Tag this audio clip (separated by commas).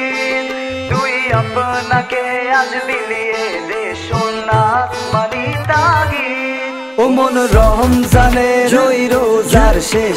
Music